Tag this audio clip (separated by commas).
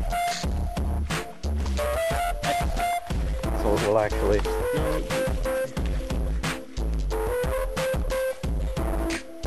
Music, Speech